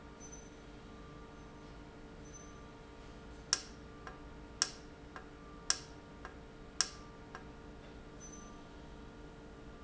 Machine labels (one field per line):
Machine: valve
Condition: normal